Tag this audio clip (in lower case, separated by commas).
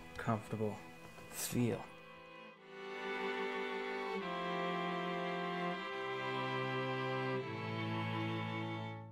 speech, music